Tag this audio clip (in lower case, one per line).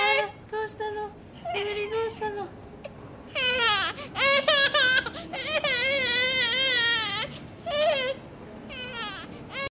speech
infant cry